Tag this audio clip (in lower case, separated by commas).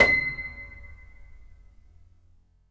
musical instrument, keyboard (musical), music, piano